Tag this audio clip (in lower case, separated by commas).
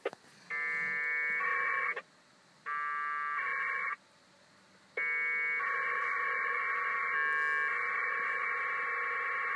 inside a small room, buzzer